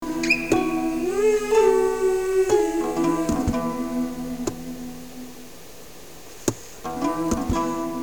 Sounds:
acoustic guitar
human voice
guitar
plucked string instrument
musical instrument
music

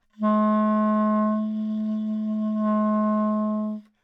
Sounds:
music
musical instrument
woodwind instrument

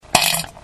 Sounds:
fart

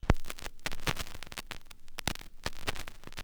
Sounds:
crackle

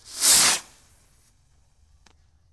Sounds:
explosion
fireworks

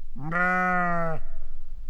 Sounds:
livestock
animal

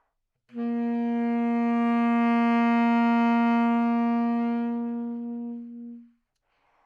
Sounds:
music
musical instrument
woodwind instrument

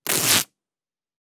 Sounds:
tearing

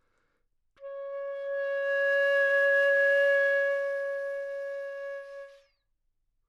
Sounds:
music
woodwind instrument
musical instrument

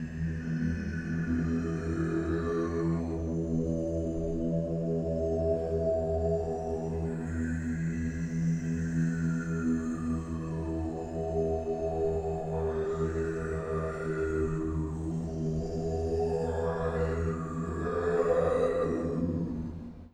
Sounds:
singing
human voice

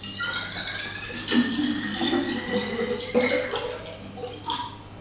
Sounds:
liquid
fill (with liquid)

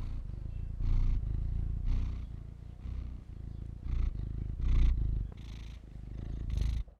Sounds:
animal
purr
cat
pets

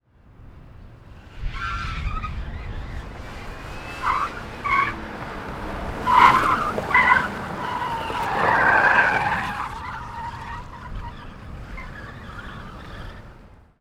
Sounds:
motor vehicle (road)
car
vehicle

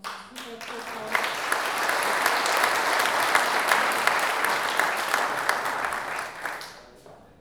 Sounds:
applause
human group actions

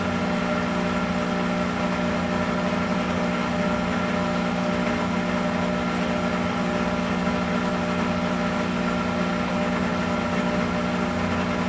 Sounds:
engine

